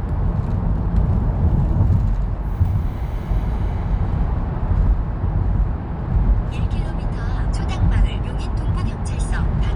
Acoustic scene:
car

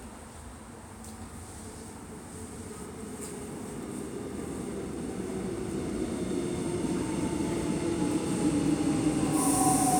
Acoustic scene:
subway station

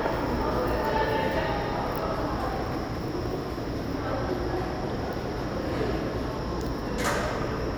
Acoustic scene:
subway station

